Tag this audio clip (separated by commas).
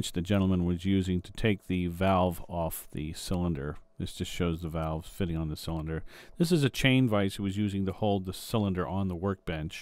Speech